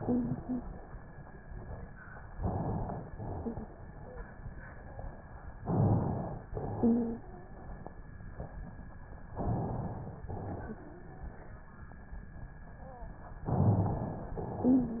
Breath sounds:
Inhalation: 2.34-3.11 s, 5.57-6.45 s, 9.33-10.24 s, 13.44-14.37 s
Exhalation: 3.11-3.87 s, 6.51-7.28 s, 10.26-11.73 s, 14.37-15.00 s
Wheeze: 0.00-0.65 s, 3.37-3.71 s, 3.95-4.29 s, 6.73-7.22 s, 10.74-11.73 s, 12.74-13.20 s, 14.67-15.00 s

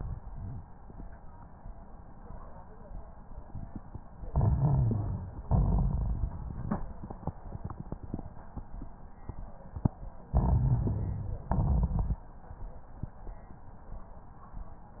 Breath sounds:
Inhalation: 4.29-5.33 s, 10.30-11.44 s
Exhalation: 5.48-6.70 s, 11.48-12.28 s
Crackles: 4.29-5.33 s, 5.48-6.70 s, 10.30-11.44 s, 11.48-12.28 s

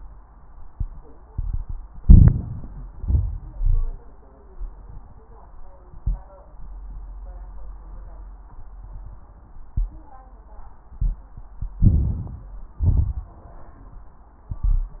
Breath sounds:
Inhalation: 1.96-3.00 s, 11.76-12.57 s
Exhalation: 3.01-3.93 s, 12.80-13.61 s
Crackles: 1.96-3.00 s, 3.01-3.93 s, 11.76-12.57 s, 12.80-13.61 s

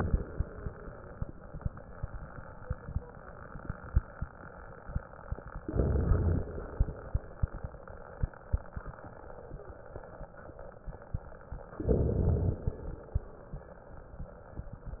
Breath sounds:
Inhalation: 5.67-6.68 s, 11.84-12.85 s

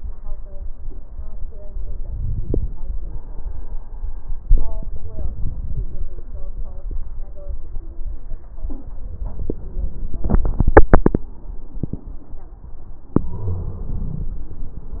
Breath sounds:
Inhalation: 2.01-2.76 s

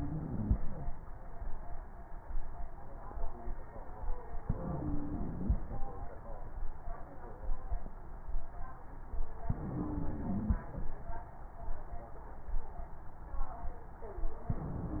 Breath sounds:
Inhalation: 0.00-0.60 s, 4.45-5.57 s, 9.46-10.58 s, 14.52-15.00 s
Stridor: 0.00-0.60 s, 4.45-5.57 s, 9.46-10.58 s, 14.52-15.00 s

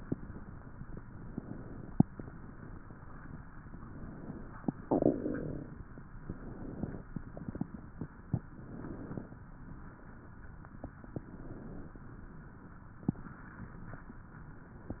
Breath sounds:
Inhalation: 1.31-2.43 s, 3.74-4.80 s, 6.22-7.08 s, 8.48-9.34 s, 11.08-11.94 s
Exhalation: 4.84-5.81 s, 7.10-7.95 s, 9.49-10.53 s, 12.09-13.05 s

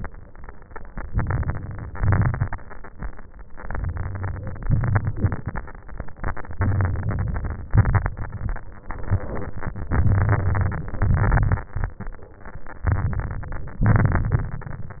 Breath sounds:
Inhalation: 1.06-1.96 s, 3.61-4.66 s, 6.62-7.67 s, 8.88-9.93 s, 12.84-13.84 s
Exhalation: 1.97-2.87 s, 4.67-5.71 s, 7.75-8.79 s, 9.92-11.61 s, 13.84-15.00 s
Crackles: 1.96-2.90 s, 4.65-5.71 s, 6.60-7.66 s, 7.75-8.80 s, 9.92-11.61 s, 12.87-13.81 s, 13.84-15.00 s

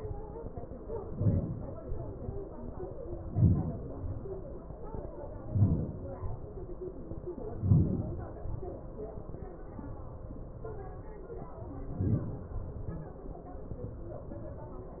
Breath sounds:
Inhalation: 0.61-1.65 s, 2.96-3.83 s, 5.12-5.98 s, 7.19-8.08 s, 11.54-12.33 s
Exhalation: 1.65-2.28 s, 3.89-4.54 s, 5.96-6.47 s, 8.12-8.86 s, 12.39-12.96 s

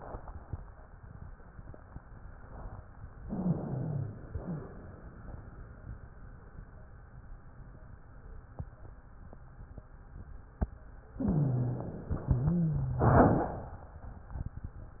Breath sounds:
Inhalation: 3.19-4.22 s, 11.16-12.29 s
Exhalation: 4.26-5.00 s, 12.33-13.41 s
Wheeze: 3.19-4.22 s, 4.26-5.00 s, 11.16-12.29 s, 12.33-13.41 s

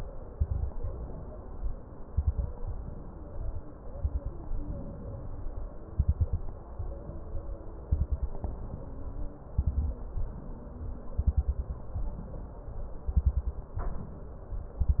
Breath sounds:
Inhalation: 0.76-1.85 s, 2.56-3.65 s, 4.56-5.65 s, 6.75-7.83 s, 8.38-9.37 s, 10.11-11.10 s, 11.97-12.97 s, 13.78-14.77 s
Exhalation: 0.27-0.74 s, 2.05-2.52 s, 3.90-4.37 s, 5.95-6.42 s, 7.89-8.36 s, 9.54-10.01 s, 11.19-11.80 s, 13.09-13.70 s, 14.80-15.00 s
Crackles: 0.27-0.74 s, 2.05-2.52 s, 3.90-4.37 s, 5.95-6.42 s, 7.89-8.36 s, 9.54-10.01 s, 11.19-11.80 s, 13.09-13.70 s, 14.80-15.00 s

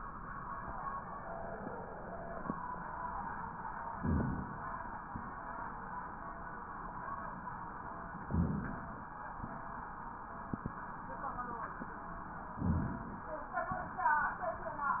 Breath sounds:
Inhalation: 3.91-4.76 s, 8.27-9.13 s, 12.56-13.42 s

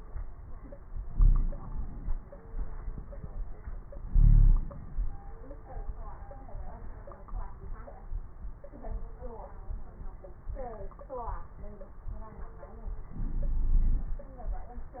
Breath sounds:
Inhalation: 1.06-2.21 s, 4.05-5.20 s, 13.11-14.25 s
Wheeze: 1.12-1.61 s, 4.10-4.74 s, 13.11-14.25 s

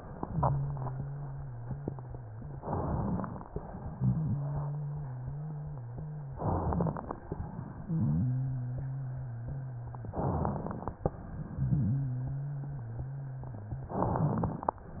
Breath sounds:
Inhalation: 2.60-3.45 s, 6.35-7.20 s, 10.16-11.01 s, 13.89-14.74 s
Exhalation: 3.49-6.32 s, 7.27-10.11 s, 11.06-13.85 s
Wheeze: 0.23-2.63 s, 3.98-6.34 s, 7.85-10.11 s, 11.46-13.85 s
Crackles: 2.57-3.46 s, 6.34-7.23 s, 10.13-11.02 s, 13.90-14.79 s

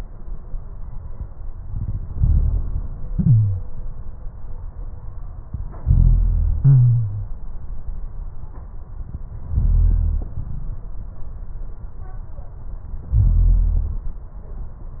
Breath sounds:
Inhalation: 1.63-3.00 s, 5.81-6.60 s, 9.53-10.36 s, 13.13-14.34 s
Exhalation: 3.06-3.72 s, 6.61-7.39 s

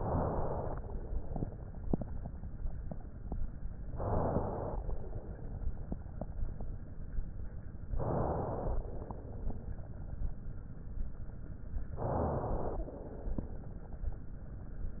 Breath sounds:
Inhalation: 0.00-0.82 s, 3.94-4.76 s, 7.92-8.74 s, 11.96-12.79 s
Exhalation: 0.80-1.57 s, 4.79-5.73 s, 8.79-9.87 s, 12.87-13.77 s

